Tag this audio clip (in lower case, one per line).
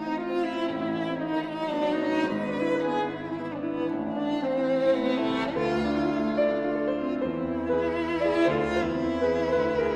musical instrument
music
fiddle